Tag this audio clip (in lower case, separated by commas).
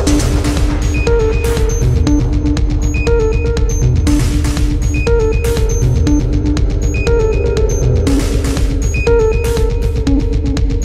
music